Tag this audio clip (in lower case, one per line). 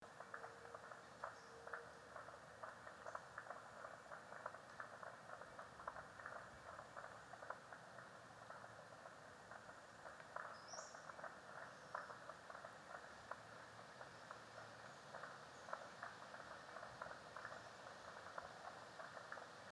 wild animals
animal
frog